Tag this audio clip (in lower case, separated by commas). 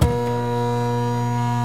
mechanisms, printer